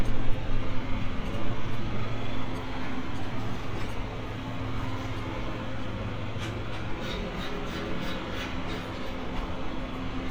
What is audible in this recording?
engine of unclear size